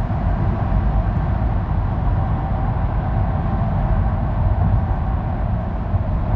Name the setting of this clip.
car